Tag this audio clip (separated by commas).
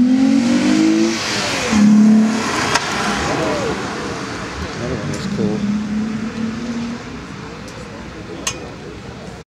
Speech